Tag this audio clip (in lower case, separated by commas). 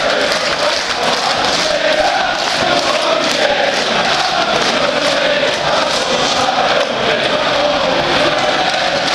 speech